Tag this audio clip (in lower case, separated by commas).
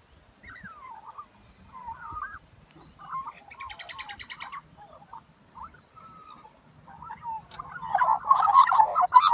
magpie calling